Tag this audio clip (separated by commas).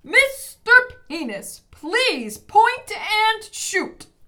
Shout, Human voice, Yell